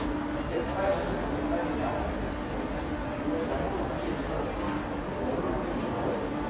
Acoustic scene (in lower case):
subway station